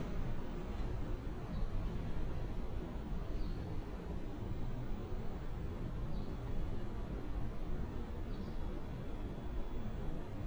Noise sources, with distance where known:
background noise

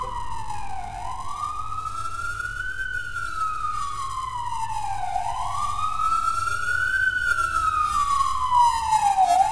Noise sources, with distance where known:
siren, near

